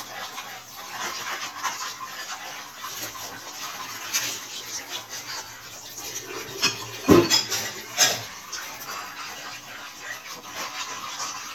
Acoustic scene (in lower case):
kitchen